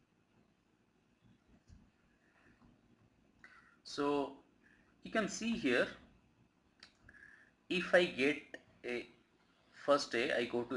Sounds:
clicking
speech

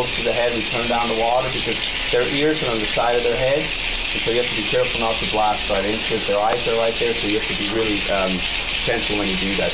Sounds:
speech

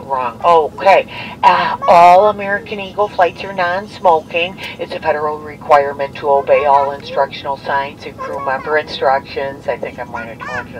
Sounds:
narration
speech
woman speaking
child speech

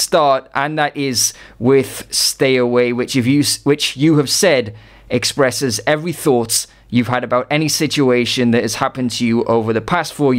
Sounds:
speech

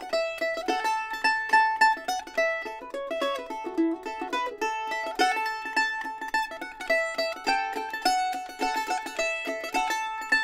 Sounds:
playing mandolin

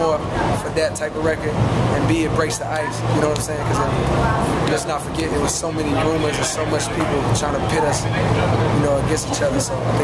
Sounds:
speech

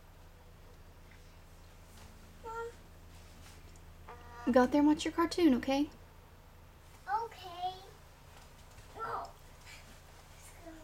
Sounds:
speech

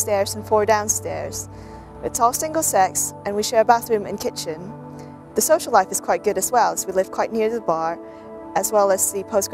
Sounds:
speech
music

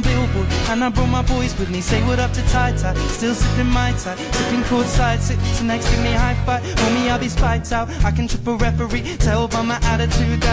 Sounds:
music

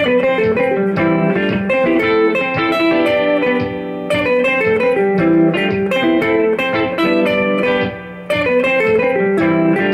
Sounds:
music

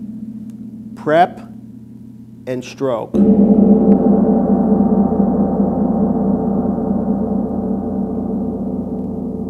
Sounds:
playing gong

